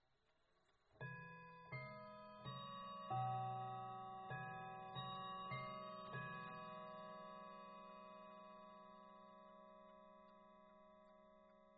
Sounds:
Clock, Chime, Bell, Mechanisms

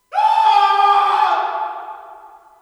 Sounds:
Human voice, Screaming, Shout, Yell

